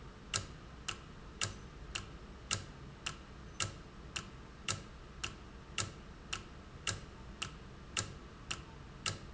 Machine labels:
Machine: valve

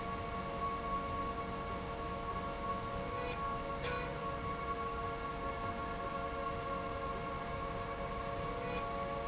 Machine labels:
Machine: slide rail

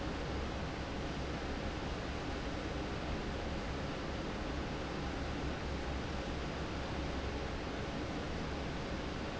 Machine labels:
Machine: fan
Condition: normal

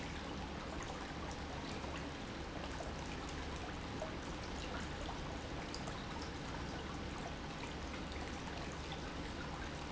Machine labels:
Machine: pump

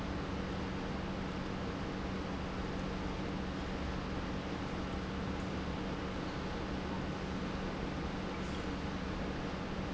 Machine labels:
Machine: pump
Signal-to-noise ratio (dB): -6 dB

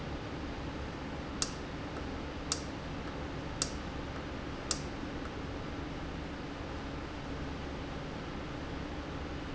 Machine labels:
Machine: valve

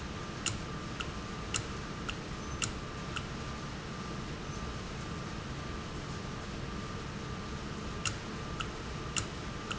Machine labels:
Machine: valve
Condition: normal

